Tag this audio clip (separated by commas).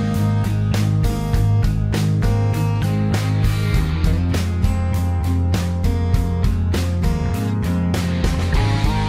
Music